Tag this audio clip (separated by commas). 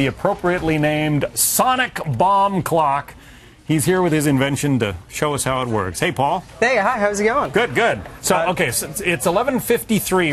Speech